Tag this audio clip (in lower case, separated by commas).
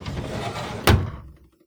drawer open or close, home sounds